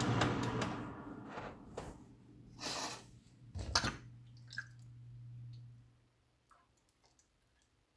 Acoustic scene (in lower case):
kitchen